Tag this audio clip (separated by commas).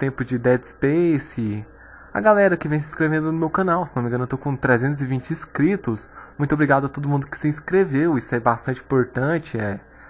Speech